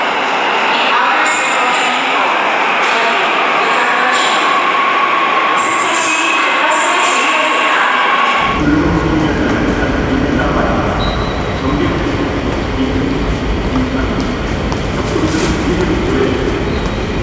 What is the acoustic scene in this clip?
subway station